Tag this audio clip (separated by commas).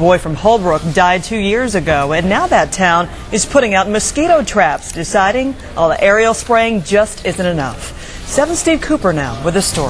Speech